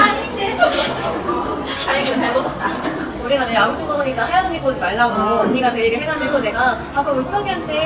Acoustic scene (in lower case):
cafe